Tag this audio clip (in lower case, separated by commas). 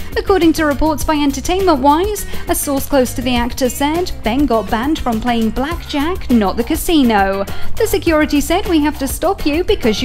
speech, music